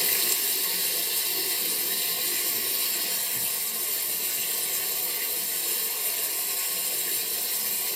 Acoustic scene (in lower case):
restroom